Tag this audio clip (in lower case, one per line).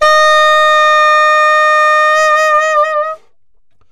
musical instrument
music
woodwind instrument